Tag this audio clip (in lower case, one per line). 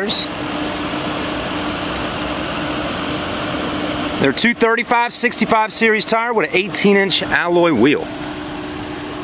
speech